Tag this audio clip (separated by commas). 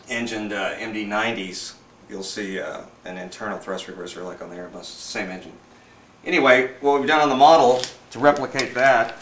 Speech, inside a small room